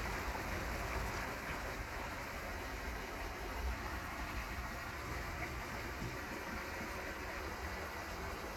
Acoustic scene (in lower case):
park